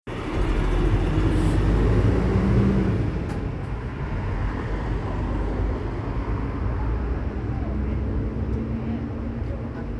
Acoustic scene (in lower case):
street